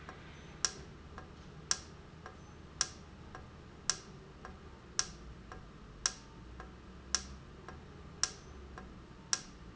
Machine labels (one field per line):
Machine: valve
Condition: normal